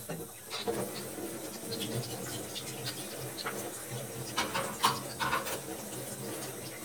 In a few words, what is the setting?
kitchen